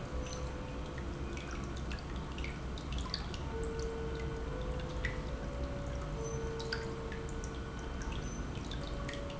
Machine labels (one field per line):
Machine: pump